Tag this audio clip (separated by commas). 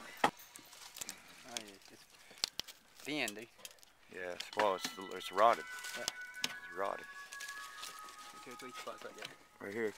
Music, Speech